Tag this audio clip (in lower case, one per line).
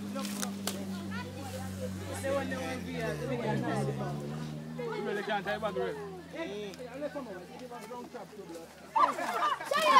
speech